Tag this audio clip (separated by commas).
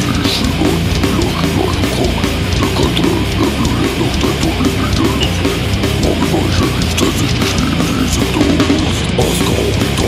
Music